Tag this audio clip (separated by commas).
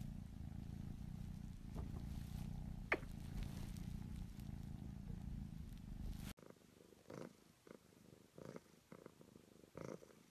cat purring